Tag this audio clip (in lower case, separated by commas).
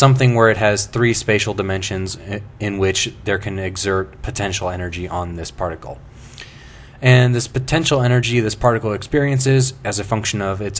speech